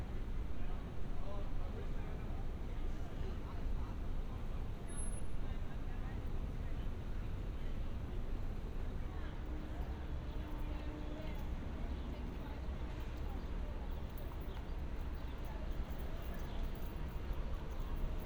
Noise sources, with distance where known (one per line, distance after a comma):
person or small group talking, far